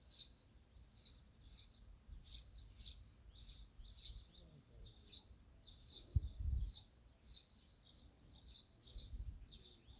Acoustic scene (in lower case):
park